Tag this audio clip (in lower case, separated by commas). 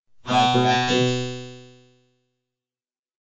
speech synthesizer, human voice, speech